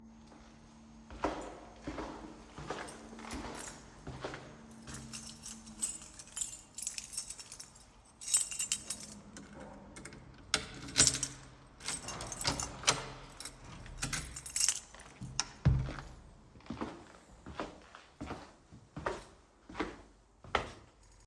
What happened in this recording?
I stood outside and jingled my keys. Then I opened the front door, took a few steps inside, and closed the door behind me.